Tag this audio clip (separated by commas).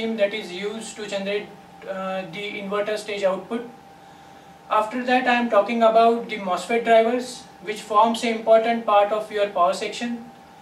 Speech